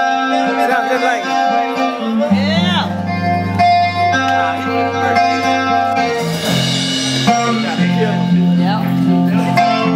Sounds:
speech
music

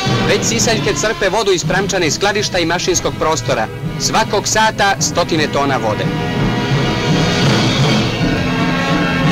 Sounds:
music
speech

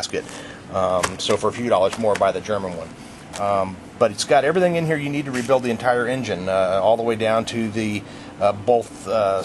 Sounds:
speech

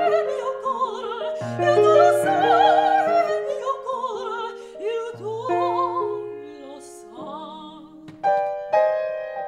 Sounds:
singing
piano
opera
music

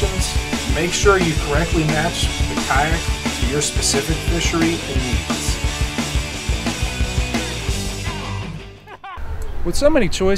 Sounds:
speech
music

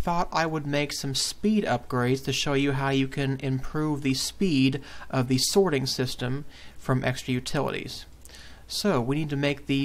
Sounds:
speech

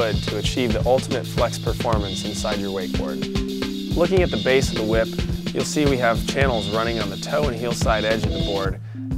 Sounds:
speech
music

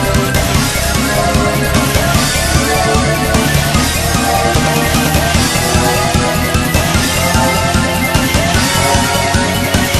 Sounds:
music
video game music

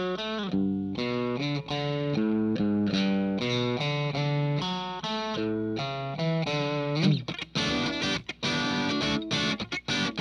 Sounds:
musical instrument
plucked string instrument
electric guitar
guitar
music

